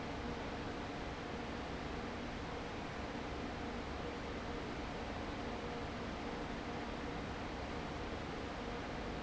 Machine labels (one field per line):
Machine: fan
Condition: abnormal